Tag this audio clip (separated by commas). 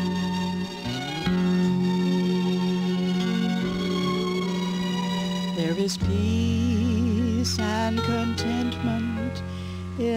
Music, Gospel music